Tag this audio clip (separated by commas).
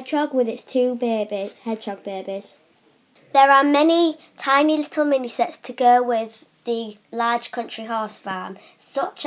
Speech